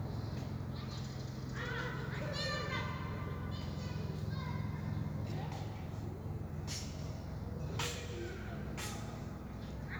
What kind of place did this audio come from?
park